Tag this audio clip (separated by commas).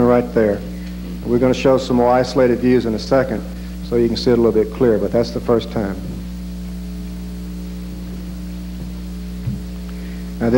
Speech